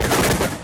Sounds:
Explosion

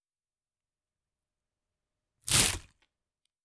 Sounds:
Tearing

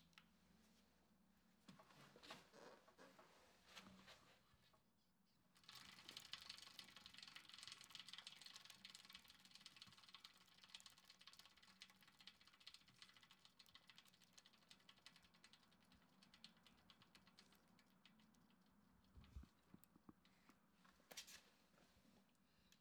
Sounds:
Bicycle, Vehicle

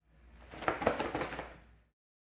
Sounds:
Bird, Wild animals, Animal

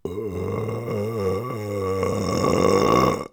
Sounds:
eructation

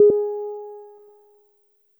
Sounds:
Piano, Music, Keyboard (musical), Musical instrument

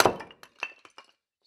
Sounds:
Wood

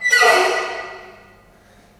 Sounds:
Squeak

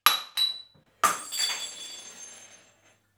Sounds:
Glass, Shatter

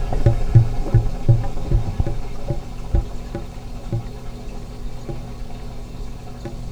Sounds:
Gurgling, Engine, Water

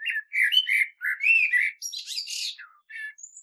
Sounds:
Bird, Animal, Wild animals

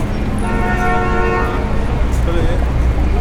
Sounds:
Motor vehicle (road), Vehicle, Alarm, car horn, Car

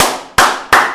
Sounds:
Hands, Clapping

